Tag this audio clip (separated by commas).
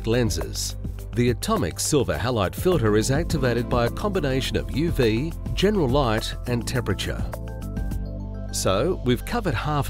Speech, Music